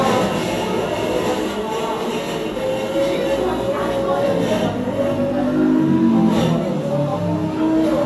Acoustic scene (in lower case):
cafe